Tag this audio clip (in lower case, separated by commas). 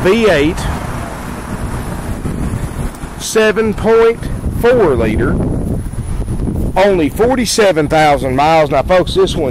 speech